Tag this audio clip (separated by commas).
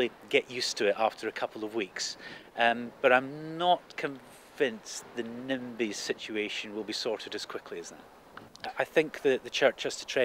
Speech